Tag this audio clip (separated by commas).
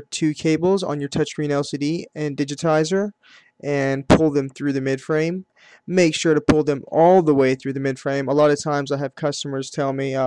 Speech